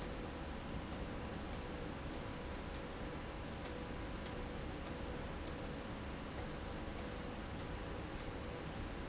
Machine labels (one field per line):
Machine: slide rail